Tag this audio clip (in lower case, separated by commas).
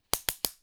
tools